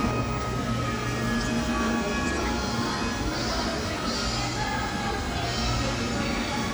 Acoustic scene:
cafe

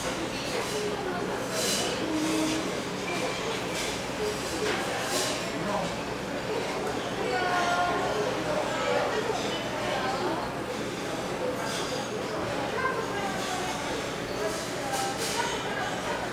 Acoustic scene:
restaurant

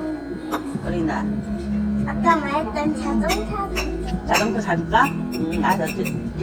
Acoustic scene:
restaurant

